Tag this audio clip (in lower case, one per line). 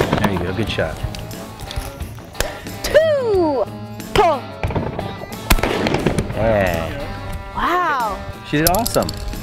speech
music
firecracker